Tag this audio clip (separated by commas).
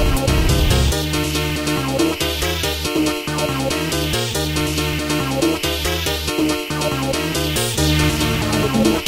Trance music